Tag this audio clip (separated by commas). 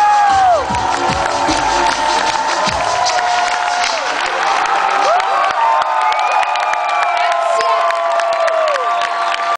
Cheering